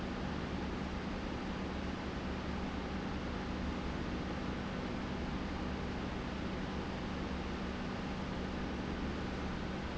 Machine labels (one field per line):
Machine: pump